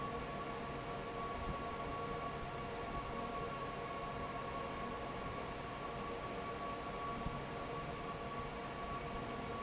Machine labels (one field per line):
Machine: fan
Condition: normal